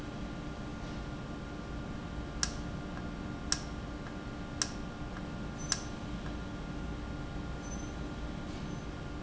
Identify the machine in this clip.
valve